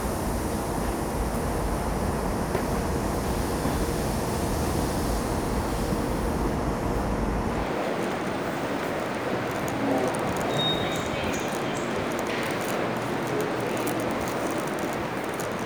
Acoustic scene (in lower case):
subway station